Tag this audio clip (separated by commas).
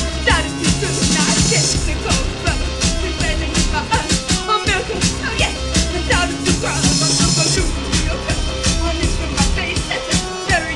Music